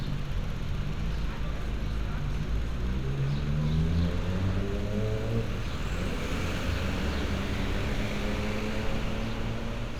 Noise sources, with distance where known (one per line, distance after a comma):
medium-sounding engine, near
large-sounding engine, near